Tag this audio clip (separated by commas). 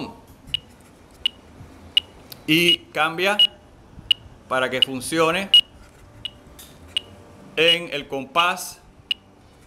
Speech